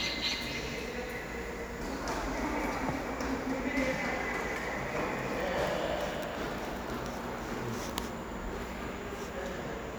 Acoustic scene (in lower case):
subway station